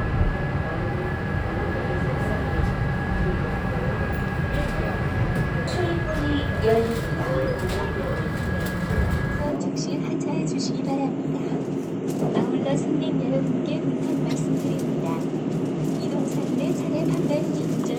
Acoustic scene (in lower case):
subway train